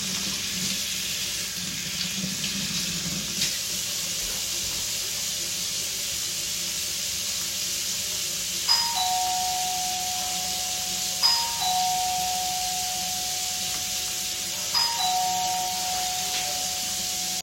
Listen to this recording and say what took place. The phone was placed statically in the bathroom. Running water is audible, and a bell rings while the water sound is still present. The two target events overlap and are both clearly audible.